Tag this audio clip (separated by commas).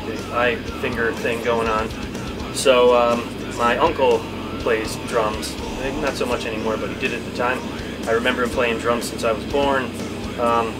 Speech, Music